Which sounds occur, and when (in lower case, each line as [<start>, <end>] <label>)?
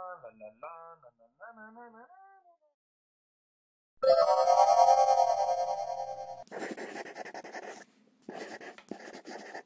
[0.00, 2.71] male singing
[0.00, 2.73] background noise
[3.98, 6.46] music
[6.42, 9.65] background noise
[6.44, 7.83] writing
[8.23, 9.65] writing